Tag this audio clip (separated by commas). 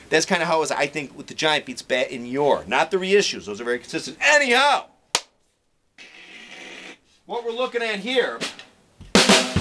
Percussion, Rimshot, Drum kit, Bass drum, Snare drum, Drum